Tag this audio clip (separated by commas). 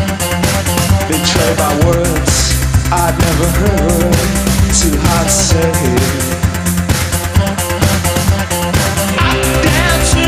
Singing, Music